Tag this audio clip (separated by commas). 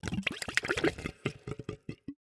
Water, Gurgling